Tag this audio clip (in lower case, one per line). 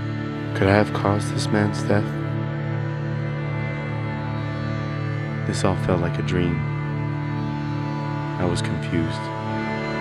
speech
music